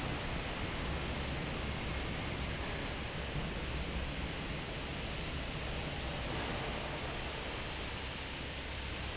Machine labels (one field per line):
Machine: fan